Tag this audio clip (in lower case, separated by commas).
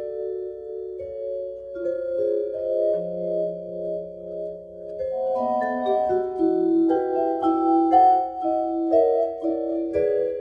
music, musical instrument, vibraphone, playing vibraphone